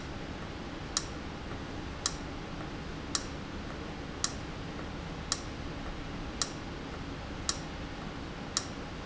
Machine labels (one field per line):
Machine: valve